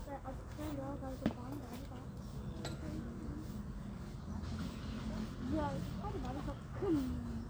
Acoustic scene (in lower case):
park